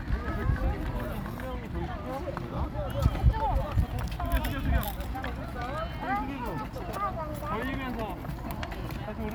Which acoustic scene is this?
park